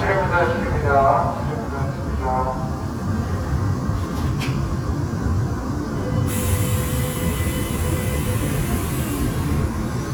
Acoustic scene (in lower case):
subway train